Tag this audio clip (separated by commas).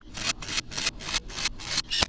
Camera, Mechanisms